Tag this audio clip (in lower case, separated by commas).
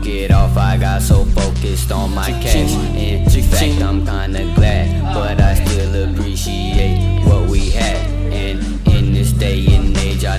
music, musical instrument, speech